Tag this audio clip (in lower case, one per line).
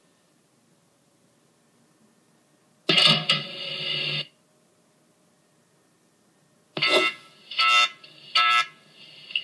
buzzer